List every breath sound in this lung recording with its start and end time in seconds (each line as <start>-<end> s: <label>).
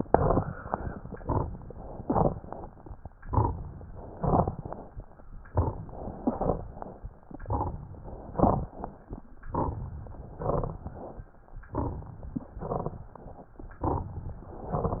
0.00-0.57 s: inhalation
0.00-0.57 s: crackles
1.04-1.61 s: exhalation
1.04-1.61 s: crackles
1.90-2.47 s: inhalation
1.90-2.47 s: crackles
3.11-3.68 s: exhalation
3.11-3.68 s: crackles
4.19-4.76 s: inhalation
4.19-4.76 s: crackles
5.41-5.86 s: exhalation
5.41-5.86 s: crackles
6.11-6.74 s: inhalation
6.11-6.74 s: crackles
7.38-8.01 s: exhalation
7.38-8.01 s: crackles
8.22-8.84 s: inhalation
8.22-8.84 s: crackles
9.41-9.92 s: exhalation
9.41-9.92 s: crackles
10.29-10.91 s: inhalation
10.29-10.91 s: crackles
11.69-12.31 s: exhalation
11.69-12.31 s: crackles
12.56-13.19 s: inhalation
12.56-13.19 s: crackles
13.78-14.40 s: exhalation
13.78-14.40 s: crackles
14.54-15.00 s: inhalation
14.54-15.00 s: crackles